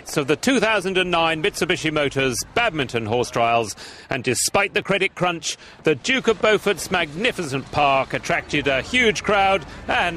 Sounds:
Speech

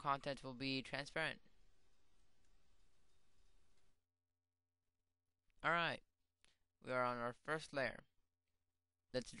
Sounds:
Speech

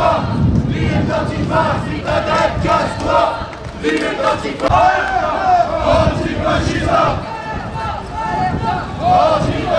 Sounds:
Battle cry, Crowd

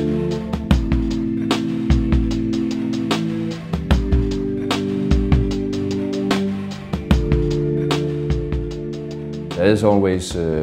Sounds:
Music, Speech

